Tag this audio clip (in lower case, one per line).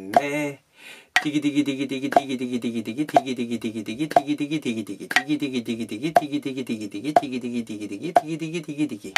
metronome